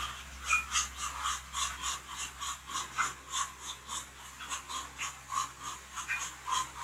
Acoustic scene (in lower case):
restroom